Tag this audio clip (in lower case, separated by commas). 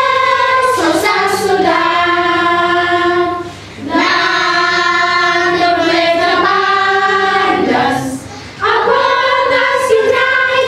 child singing, choir